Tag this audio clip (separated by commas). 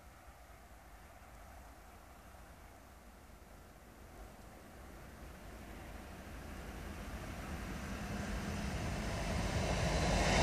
Vehicle